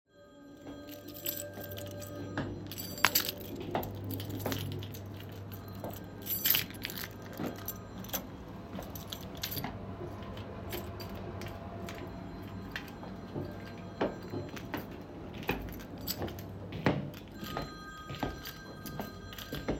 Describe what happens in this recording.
I walked in a kitchen with my keychains while a phone and the microwave was running